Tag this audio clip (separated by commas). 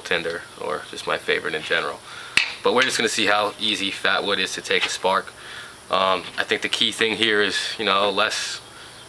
Speech